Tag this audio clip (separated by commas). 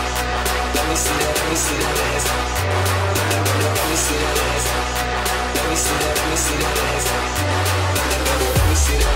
Music